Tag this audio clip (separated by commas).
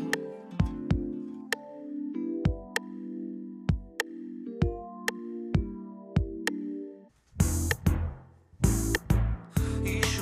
Sampler, Music